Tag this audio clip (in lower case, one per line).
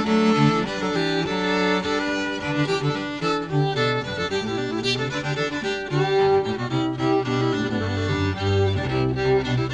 violin
music
musical instrument